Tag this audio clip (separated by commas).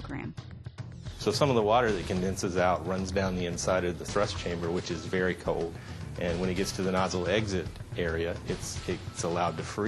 Speech, Music